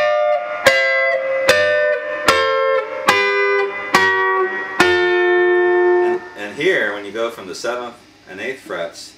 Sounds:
Plucked string instrument, Blues, Guitar, Musical instrument, Music, Speech

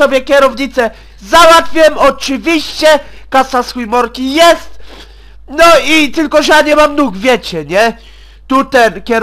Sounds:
Speech

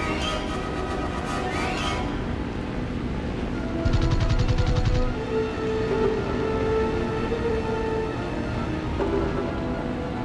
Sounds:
Music

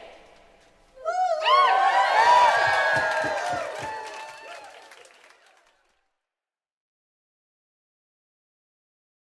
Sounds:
singing choir

